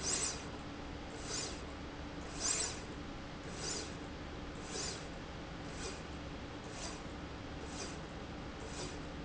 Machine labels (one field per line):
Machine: slide rail